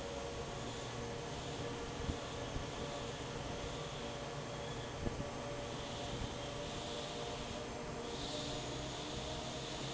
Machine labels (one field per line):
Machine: fan